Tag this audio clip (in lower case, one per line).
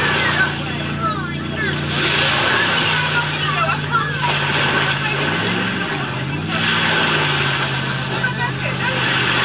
speech
rowboat
kayak rowing